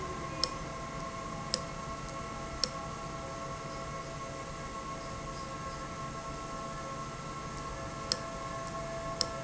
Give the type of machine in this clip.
valve